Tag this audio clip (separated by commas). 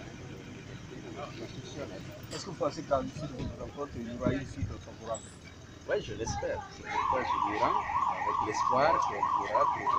Speech